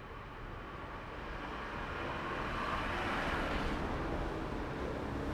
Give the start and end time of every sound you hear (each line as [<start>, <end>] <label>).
[0.00, 3.66] unclassified sound
[0.00, 5.34] truck
[0.00, 5.34] truck engine accelerating
[4.29, 5.34] motorcycle
[4.29, 5.34] motorcycle engine accelerating